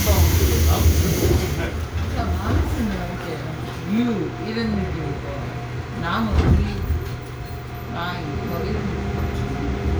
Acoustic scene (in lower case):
subway train